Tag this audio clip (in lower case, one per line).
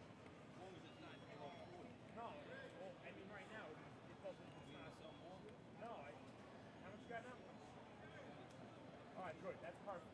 speech